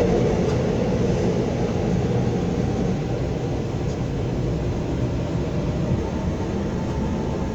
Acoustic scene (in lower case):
subway train